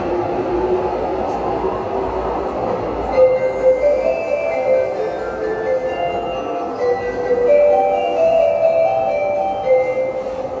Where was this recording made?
in a subway station